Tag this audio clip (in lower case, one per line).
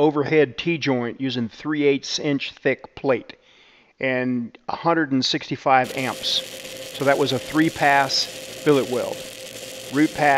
arc welding